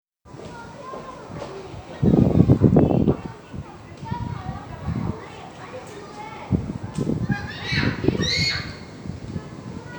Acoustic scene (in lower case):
park